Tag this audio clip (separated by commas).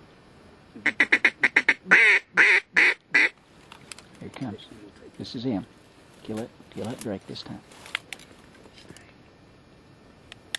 outside, rural or natural, Quack, Speech